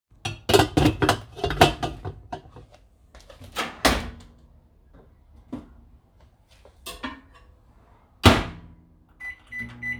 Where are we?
in a kitchen